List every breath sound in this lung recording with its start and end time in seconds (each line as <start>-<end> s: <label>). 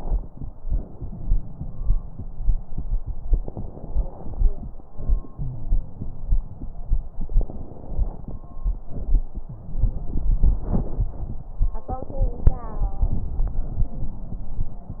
0.57-3.07 s: exhalation
0.57-3.07 s: crackles
3.13-4.83 s: inhalation
3.13-4.83 s: crackles
4.84-7.17 s: exhalation
5.33-6.39 s: wheeze
7.16-8.86 s: inhalation
7.16-8.86 s: crackles
8.86-9.65 s: exhalation
9.45-9.82 s: wheeze